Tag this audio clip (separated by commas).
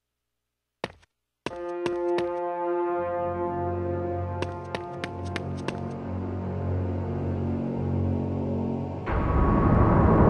Scary music, Music